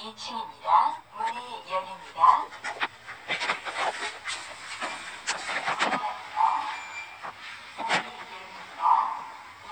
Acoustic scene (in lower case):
elevator